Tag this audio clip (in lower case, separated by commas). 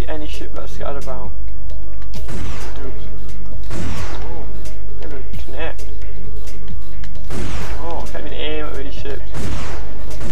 speech, music